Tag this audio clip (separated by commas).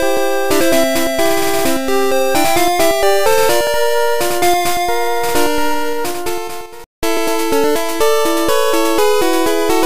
Music